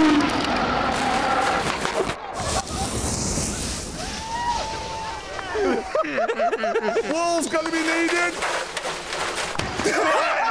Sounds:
skiing

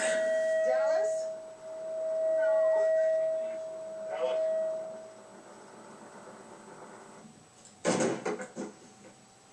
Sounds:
speech

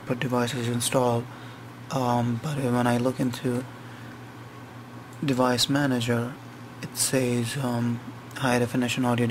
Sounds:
speech

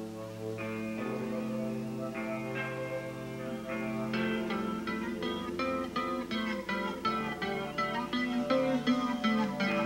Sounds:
music

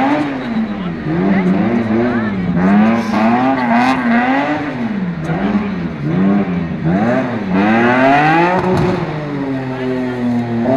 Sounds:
vehicle, car, revving, engine, medium engine (mid frequency)

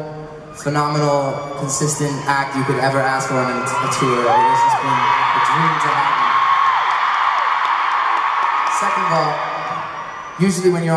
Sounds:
speech

